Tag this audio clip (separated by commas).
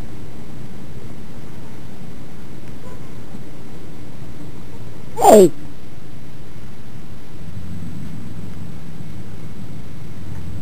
Speech